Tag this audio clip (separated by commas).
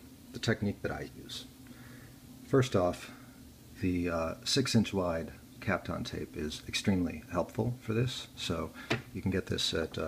Speech